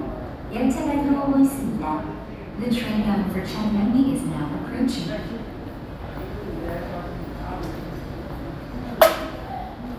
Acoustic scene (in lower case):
subway station